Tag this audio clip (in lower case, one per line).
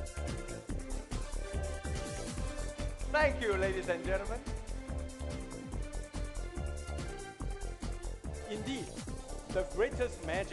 music
speech